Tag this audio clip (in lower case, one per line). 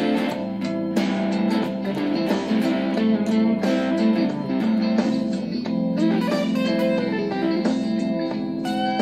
musical instrument
blues
plucked string instrument
acoustic guitar
electric guitar
guitar
music